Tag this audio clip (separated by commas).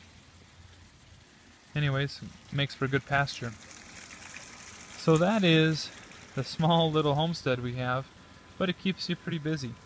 Speech